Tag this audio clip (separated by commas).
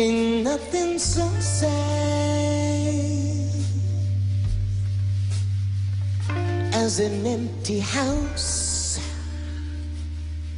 Plucked string instrument, Acoustic guitar, Musical instrument, Guitar, Music